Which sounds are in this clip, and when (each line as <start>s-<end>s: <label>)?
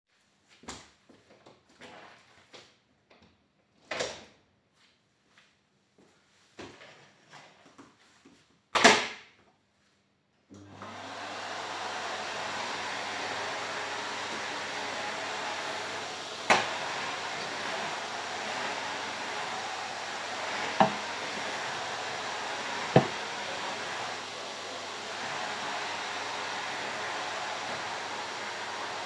0.5s-3.3s: footsteps
3.8s-4.3s: door
4.7s-8.0s: footsteps
8.6s-9.5s: door
10.5s-29.1s: vacuum cleaner